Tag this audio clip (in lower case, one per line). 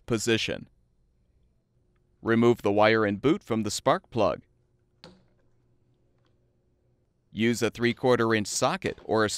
speech